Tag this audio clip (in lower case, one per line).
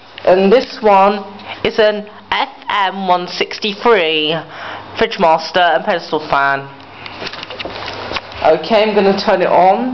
speech